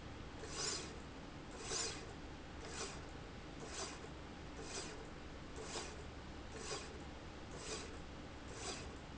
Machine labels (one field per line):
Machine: slide rail